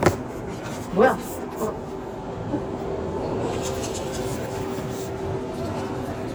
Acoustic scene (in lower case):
subway station